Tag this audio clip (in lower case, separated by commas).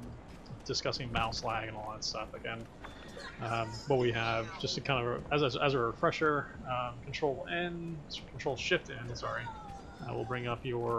speech